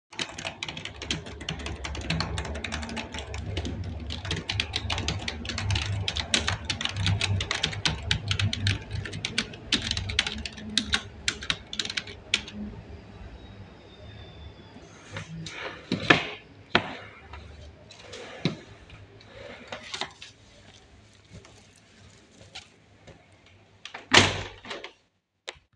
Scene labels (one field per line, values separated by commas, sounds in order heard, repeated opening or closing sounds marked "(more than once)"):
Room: bedroom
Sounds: keyboard typing, wardrobe or drawer, window